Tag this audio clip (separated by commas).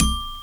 Musical instrument, Music, Percussion, Mallet percussion, xylophone